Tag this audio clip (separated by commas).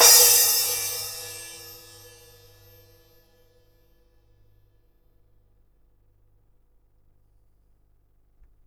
Music, Crash cymbal, Percussion, Musical instrument, Cymbal